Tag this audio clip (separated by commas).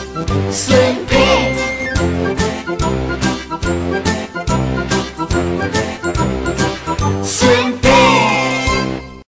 Music